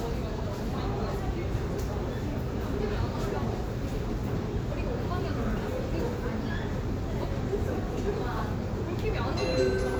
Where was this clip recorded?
in a subway station